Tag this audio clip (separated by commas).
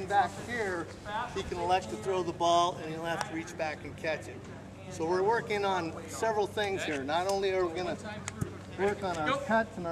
outside, urban or man-made, Speech